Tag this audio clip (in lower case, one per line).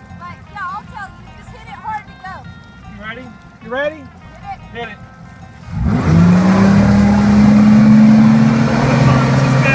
speedboat
boat